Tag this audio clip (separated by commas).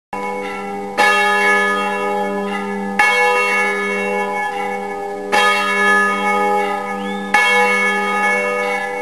church bell ringing, Church bell